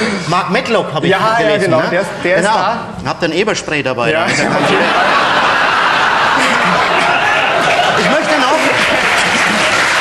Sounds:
speech, applause

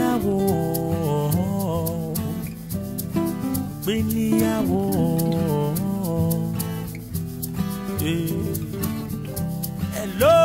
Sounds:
music, tender music, speech

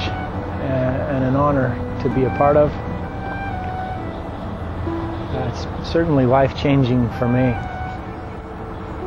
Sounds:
music, speech

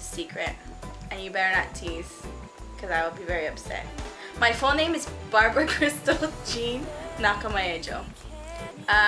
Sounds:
music, speech

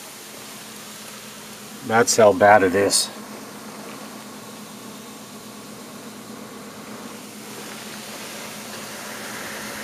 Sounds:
speech

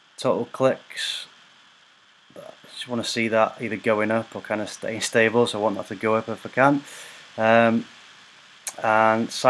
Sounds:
speech

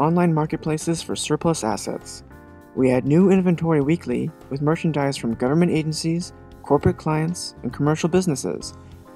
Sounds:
speech, music

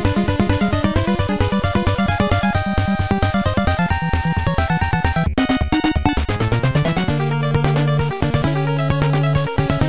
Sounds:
soundtrack music, music

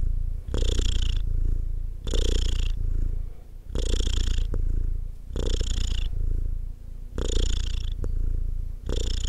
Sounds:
cat purring

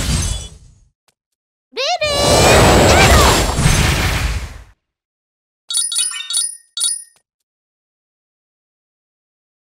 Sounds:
speech

